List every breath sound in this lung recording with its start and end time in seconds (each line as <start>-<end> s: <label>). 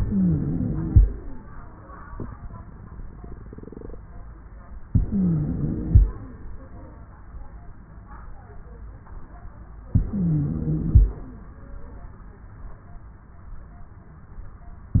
0.00-1.02 s: inhalation
0.00-1.02 s: wheeze
4.90-5.93 s: inhalation
4.90-5.93 s: wheeze
9.98-11.00 s: inhalation
9.98-11.00 s: wheeze